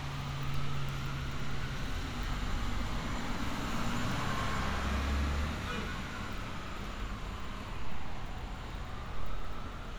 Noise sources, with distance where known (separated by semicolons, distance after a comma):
engine of unclear size; car horn, near; siren, far